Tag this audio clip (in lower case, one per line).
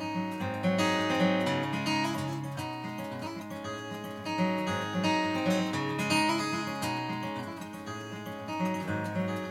strum
music
plucked string instrument
musical instrument
guitar